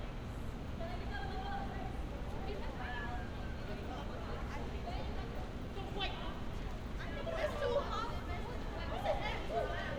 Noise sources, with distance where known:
unidentified human voice, near

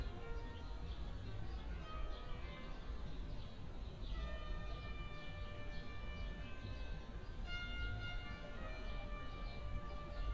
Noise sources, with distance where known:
music from a fixed source, near

